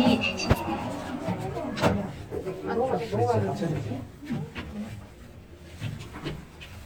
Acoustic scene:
elevator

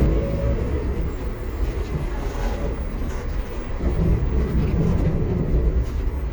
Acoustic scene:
bus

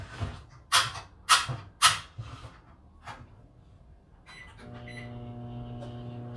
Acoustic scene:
kitchen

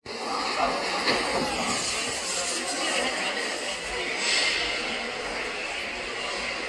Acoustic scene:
subway station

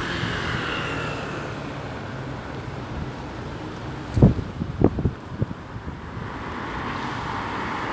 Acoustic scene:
street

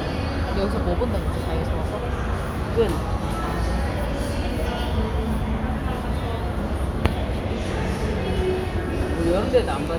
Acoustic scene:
crowded indoor space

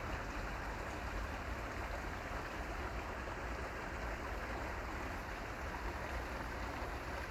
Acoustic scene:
park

